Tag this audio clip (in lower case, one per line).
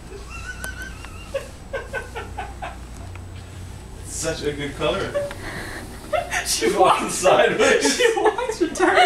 speech